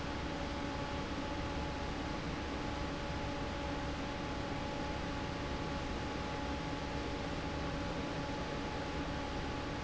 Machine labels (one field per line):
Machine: fan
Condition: normal